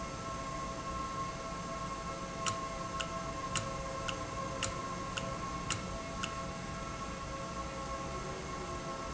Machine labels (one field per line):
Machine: valve